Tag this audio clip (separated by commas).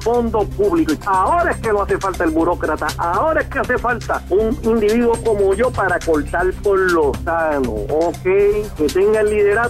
Speech, Music